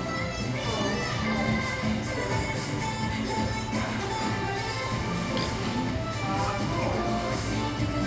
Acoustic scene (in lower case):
cafe